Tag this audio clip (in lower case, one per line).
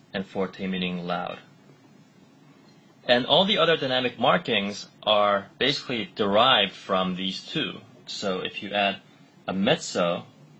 speech